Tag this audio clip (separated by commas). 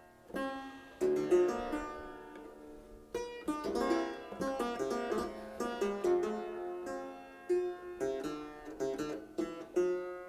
playing harpsichord